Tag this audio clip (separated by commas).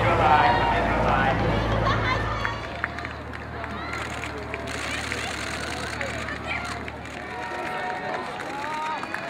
outside, urban or man-made, Speech